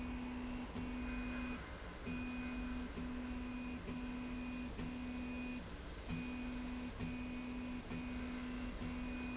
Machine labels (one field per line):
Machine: slide rail